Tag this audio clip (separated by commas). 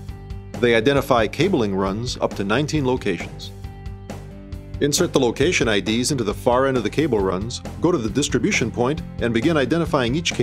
Speech, Music